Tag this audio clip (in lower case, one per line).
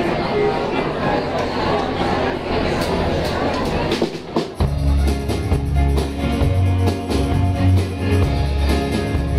speech
single-lens reflex camera
music
bluegrass
country